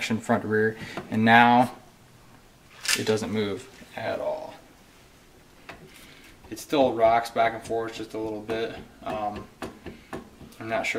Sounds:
Speech, inside a small room

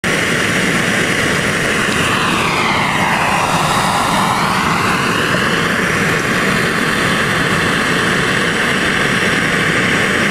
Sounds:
outside, urban or man-made

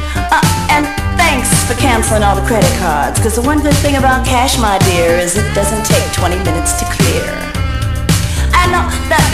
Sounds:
Speech, Funk, Music

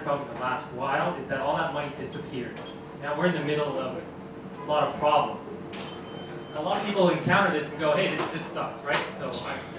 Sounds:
Speech

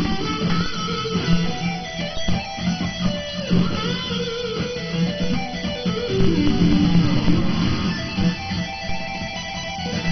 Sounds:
Music, Plucked string instrument, Strum, Musical instrument, Guitar

